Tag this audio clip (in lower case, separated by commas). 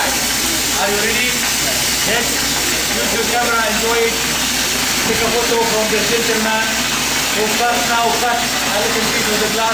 speech